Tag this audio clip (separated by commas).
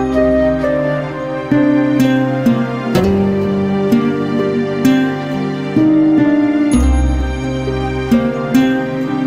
Music, Background music